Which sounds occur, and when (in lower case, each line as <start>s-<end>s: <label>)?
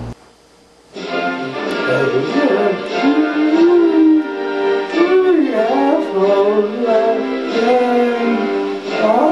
0.0s-9.3s: mechanisms
0.9s-9.3s: music
1.8s-4.3s: female singing
4.9s-8.5s: female singing